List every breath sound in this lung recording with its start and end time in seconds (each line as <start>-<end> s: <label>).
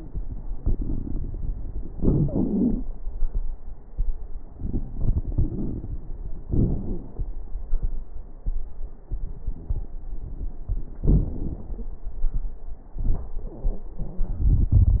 0.44-1.89 s: inhalation
0.44-1.89 s: crackles
1.90-2.86 s: exhalation
1.90-2.86 s: crackles
4.57-6.18 s: inhalation
4.57-6.18 s: crackles
6.48-7.36 s: exhalation
6.48-7.36 s: crackles
11.01-11.89 s: exhalation
11.01-11.89 s: crackles